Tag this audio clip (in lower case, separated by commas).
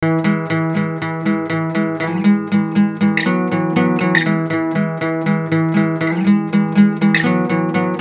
plucked string instrument, guitar, music, acoustic guitar, musical instrument